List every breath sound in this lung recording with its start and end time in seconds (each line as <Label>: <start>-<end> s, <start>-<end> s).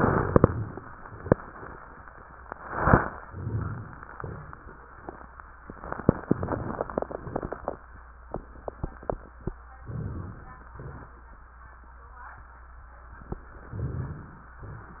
Inhalation: 9.85-10.69 s
Exhalation: 10.78-11.20 s